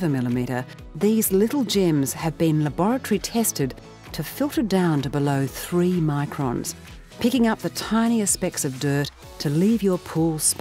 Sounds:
speech
music

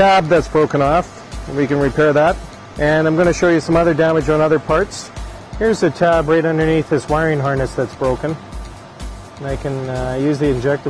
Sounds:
arc welding

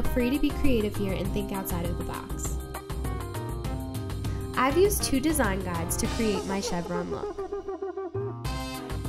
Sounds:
music
speech

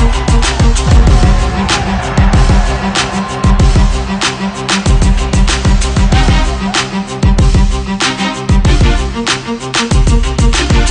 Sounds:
theme music
exciting music
music

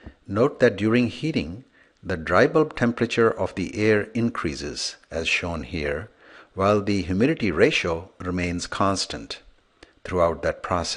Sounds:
speech

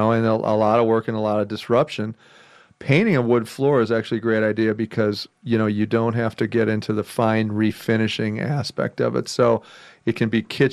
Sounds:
speech

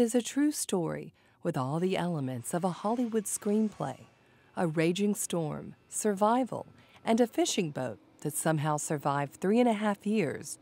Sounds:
speech

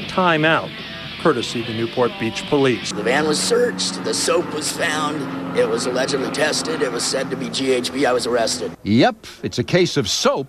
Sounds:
speech

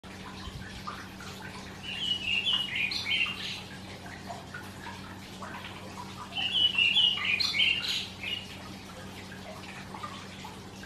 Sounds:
wood thrush calling

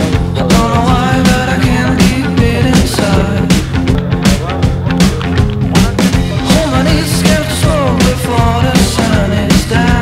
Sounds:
music
speech

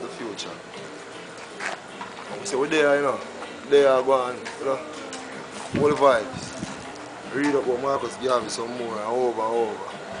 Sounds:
speech

